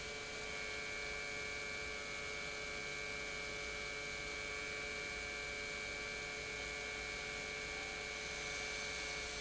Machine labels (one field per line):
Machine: pump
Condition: normal